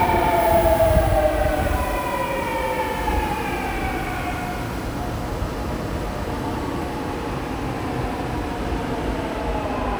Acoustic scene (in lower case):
subway station